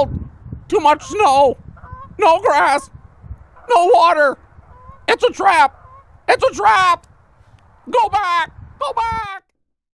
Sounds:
Honk, Speech

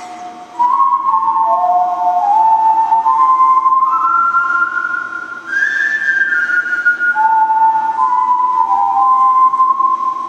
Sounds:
people whistling, Whistling

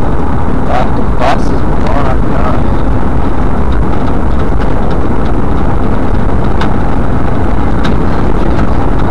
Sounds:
Vehicle, Speech

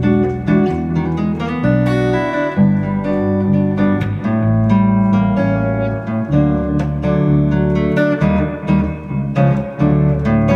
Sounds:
Guitar, Plucked string instrument, Music, Musical instrument

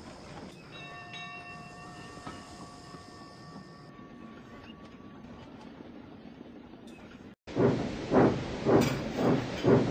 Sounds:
Clatter

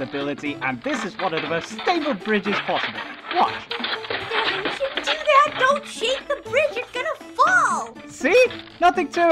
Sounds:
Speech, Music

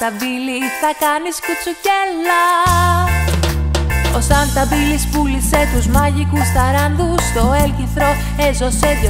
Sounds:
Christian music, Music

